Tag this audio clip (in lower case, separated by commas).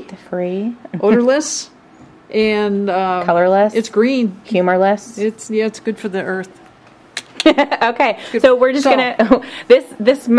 speech